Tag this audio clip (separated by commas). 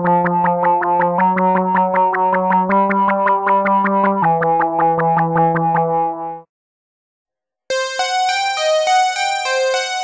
Sampler, Music